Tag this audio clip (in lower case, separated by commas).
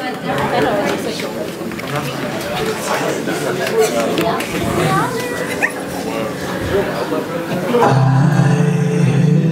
music, speech